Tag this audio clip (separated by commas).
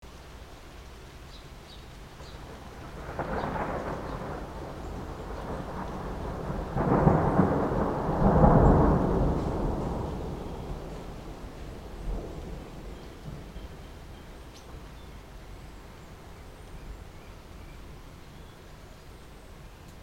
Thunderstorm, Rain, Water, Thunder